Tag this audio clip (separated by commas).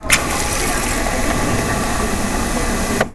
Liquid